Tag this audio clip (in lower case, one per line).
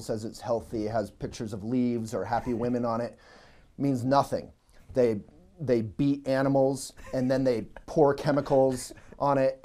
speech